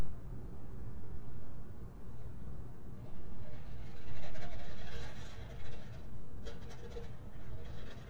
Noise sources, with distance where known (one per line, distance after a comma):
background noise